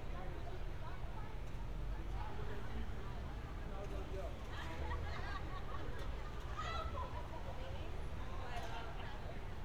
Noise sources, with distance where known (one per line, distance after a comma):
person or small group talking